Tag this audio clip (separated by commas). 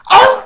pets, Dog, Animal